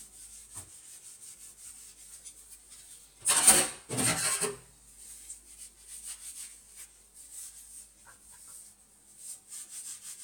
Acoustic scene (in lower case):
kitchen